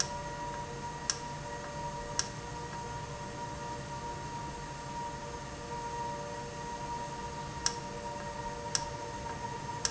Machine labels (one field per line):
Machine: valve